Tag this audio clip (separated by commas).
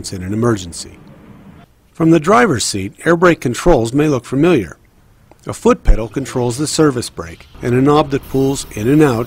Speech